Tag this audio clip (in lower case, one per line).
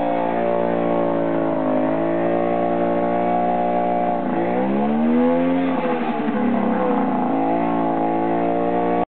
engine
medium engine (mid frequency)
speech